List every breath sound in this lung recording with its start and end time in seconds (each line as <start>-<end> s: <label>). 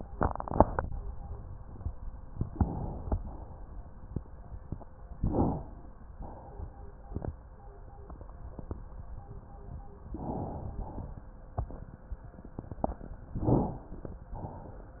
2.49-3.11 s: inhalation
3.11-3.57 s: exhalation
5.16-6.07 s: inhalation
6.21-7.12 s: exhalation
10.06-10.74 s: inhalation
10.74-11.27 s: exhalation
13.38-14.18 s: inhalation
14.31-15.00 s: exhalation